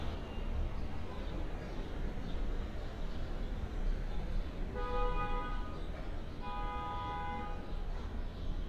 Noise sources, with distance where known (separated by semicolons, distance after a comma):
car horn